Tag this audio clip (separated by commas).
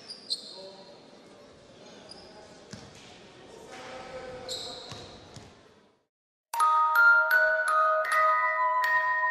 Basketball bounce, Music